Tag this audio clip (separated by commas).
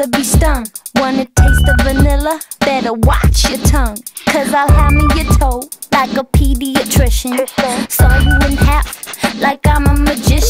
Music, Exciting music